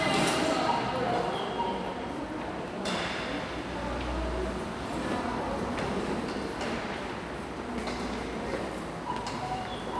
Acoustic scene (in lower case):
subway station